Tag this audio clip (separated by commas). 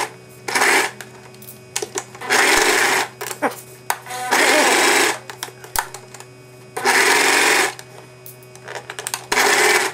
Sewing machine